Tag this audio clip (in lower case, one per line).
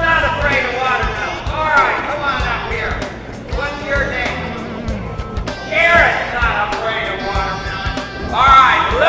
speech
music